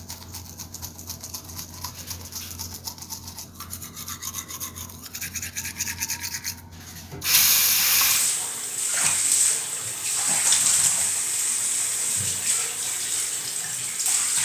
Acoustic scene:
restroom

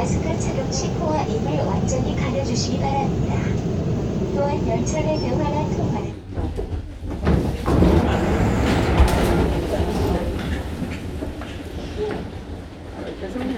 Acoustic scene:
subway train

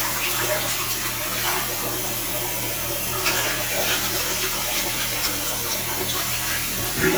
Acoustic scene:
restroom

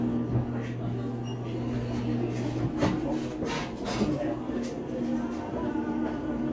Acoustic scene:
cafe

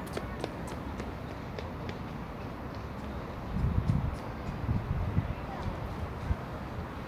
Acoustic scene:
residential area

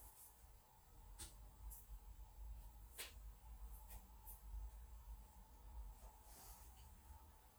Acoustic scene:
kitchen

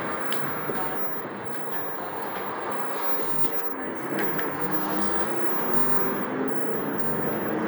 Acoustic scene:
bus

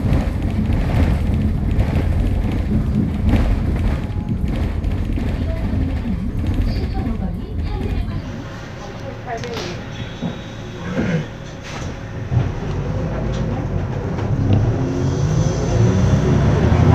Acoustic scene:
bus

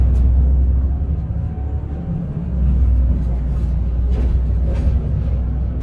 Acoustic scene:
bus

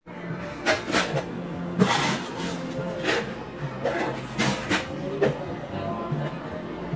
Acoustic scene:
cafe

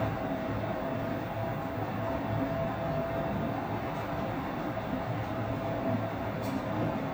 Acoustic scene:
elevator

